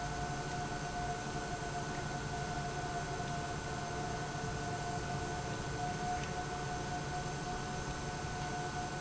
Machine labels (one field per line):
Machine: pump